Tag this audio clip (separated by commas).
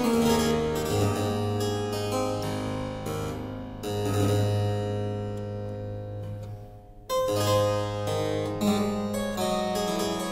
playing harpsichord, Harpsichord, Keyboard (musical)